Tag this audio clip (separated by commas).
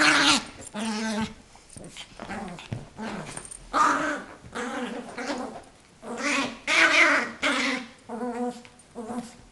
Animal, Dog, Domestic animals